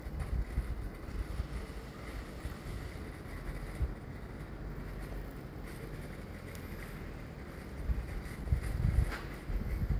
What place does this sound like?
residential area